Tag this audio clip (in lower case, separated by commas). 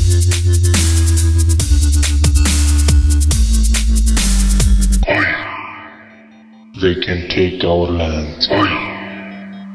speech, music, hip hop music, drum and bass